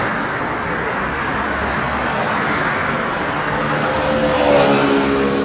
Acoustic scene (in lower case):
street